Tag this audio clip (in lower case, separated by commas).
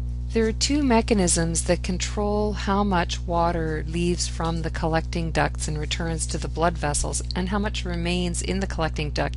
speech